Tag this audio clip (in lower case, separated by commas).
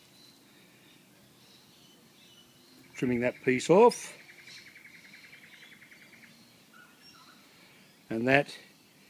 speech, bird call, outside, rural or natural, chirp